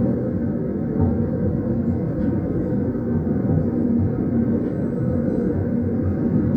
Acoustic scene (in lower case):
subway train